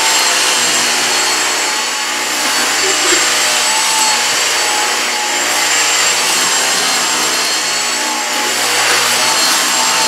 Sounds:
vacuum cleaner cleaning floors

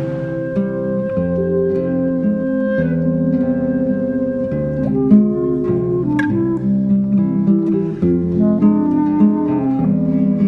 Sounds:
double bass

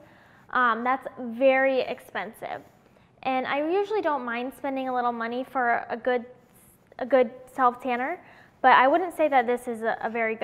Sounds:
speech

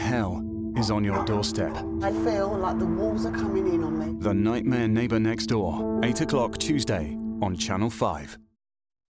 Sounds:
speech
music

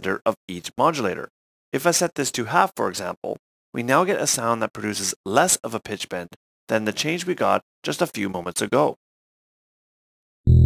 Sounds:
speech

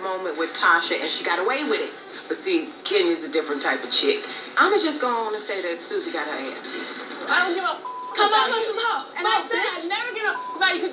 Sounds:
speech

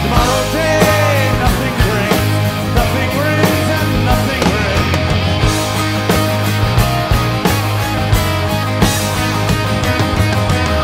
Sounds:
singing
plucked string instrument
music
guitar
musical instrument

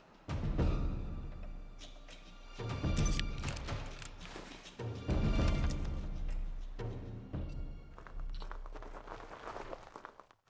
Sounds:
music

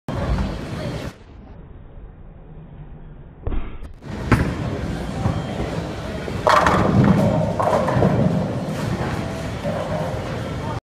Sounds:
striking bowling

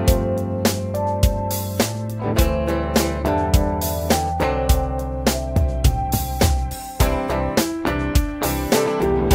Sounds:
music

